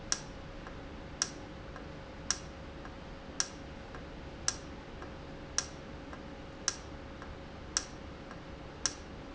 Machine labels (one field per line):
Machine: valve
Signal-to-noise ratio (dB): 0 dB